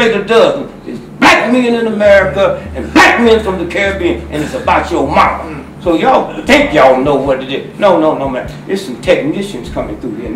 A man speaking angrily in the background